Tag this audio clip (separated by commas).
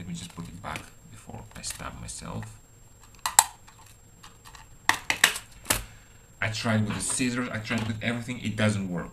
Speech